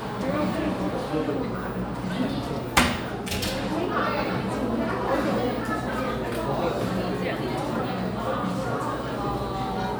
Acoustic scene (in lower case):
crowded indoor space